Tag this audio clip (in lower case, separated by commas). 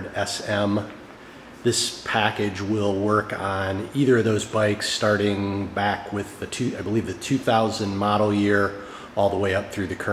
speech